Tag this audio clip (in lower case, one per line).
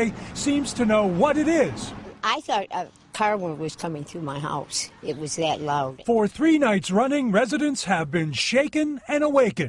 speech